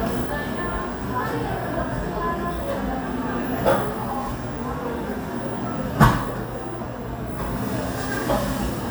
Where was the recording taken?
in a cafe